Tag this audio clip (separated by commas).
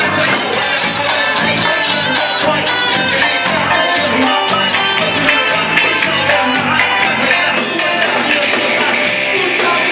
Heavy metal, Rock and roll, Music